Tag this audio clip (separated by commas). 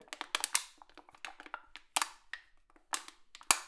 Crushing